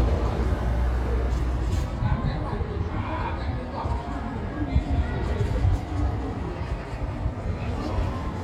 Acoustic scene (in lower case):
residential area